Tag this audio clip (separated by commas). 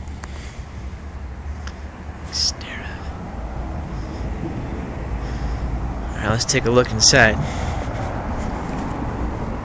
Vehicle, outside, urban or man-made, Speech